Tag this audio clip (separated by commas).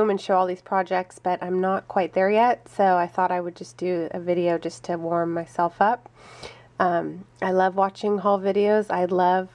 Speech